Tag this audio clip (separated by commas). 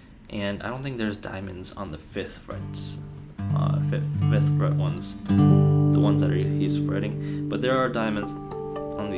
Plucked string instrument, Speech, Musical instrument, Guitar, Acoustic guitar, Music